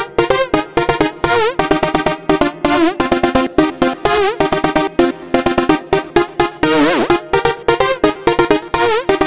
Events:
0.0s-9.2s: music

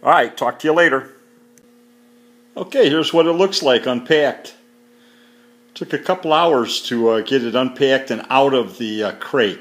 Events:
0.0s-9.6s: mechanisms
1.6s-1.7s: tick
5.8s-9.6s: man speaking

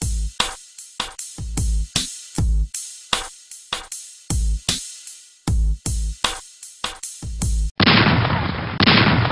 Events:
0.0s-7.7s: music
7.7s-9.3s: gunfire

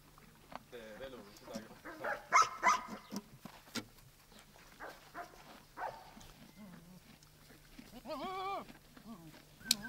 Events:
0.0s-9.8s: background noise
0.0s-9.8s: footsteps
0.4s-0.6s: generic impact sounds
0.7s-2.3s: man speaking
1.3s-1.6s: generic impact sounds
2.0s-2.1s: bark
2.3s-2.4s: bark
2.3s-3.2s: generic impact sounds
2.6s-2.8s: bark
3.4s-3.8s: generic impact sounds
4.7s-4.9s: bark
5.1s-5.4s: bark
5.8s-6.1s: bark
6.5s-7.1s: animal
7.7s-8.8s: animal
8.9s-9.4s: animal
9.6s-9.8s: generic impact sounds
9.6s-9.8s: animal

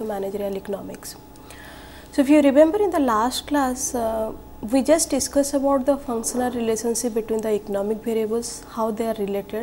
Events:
0.0s-1.1s: woman speaking
0.0s-9.6s: mechanisms
0.6s-0.7s: clicking
0.9s-0.9s: clicking
1.3s-1.4s: clicking
1.5s-2.1s: breathing
2.0s-2.0s: clicking
2.1s-4.3s: woman speaking
2.9s-3.0s: clicking
4.6s-9.6s: woman speaking
7.4s-7.5s: clicking

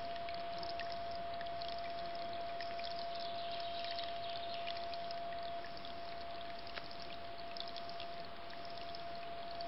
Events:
0.0s-9.6s: pour
0.0s-9.6s: sine wave
0.0s-9.6s: wind

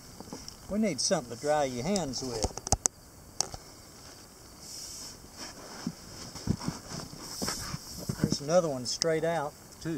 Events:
0.0s-9.9s: background noise
0.0s-9.9s: insect
0.2s-0.6s: generic impact sounds
0.7s-2.4s: male speech
0.7s-9.9s: conversation
1.9s-2.0s: generic impact sounds
2.2s-2.8s: generic impact sounds
3.4s-3.6s: generic impact sounds
5.3s-8.3s: surface contact
8.1s-9.5s: male speech
9.0s-9.0s: tick
9.8s-9.9s: male speech

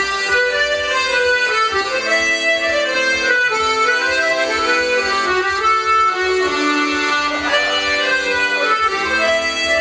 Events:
0.0s-9.8s: music
7.3s-8.0s: human voice
8.5s-9.0s: human voice

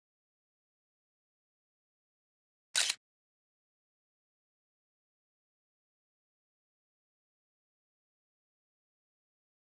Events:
2.7s-2.9s: single-lens reflex camera

